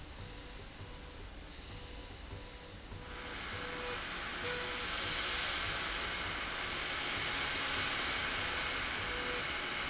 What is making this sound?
slide rail